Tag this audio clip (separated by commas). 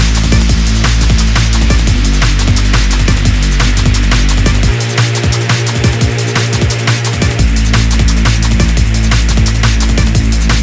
Drum and bass, Music